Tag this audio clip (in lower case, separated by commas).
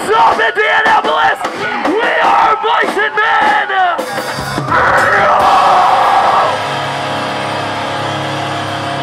music, speech